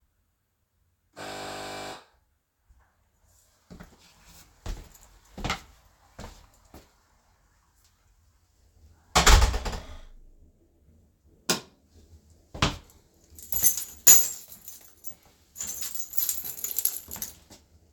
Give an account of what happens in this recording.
I rang my doorbell, then walked inside and closed my door. I then turned on my light, and placed my keys on a key stand.